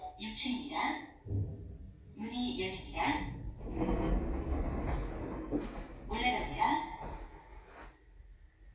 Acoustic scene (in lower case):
elevator